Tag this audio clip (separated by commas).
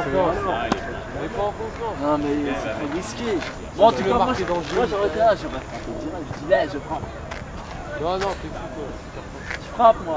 Speech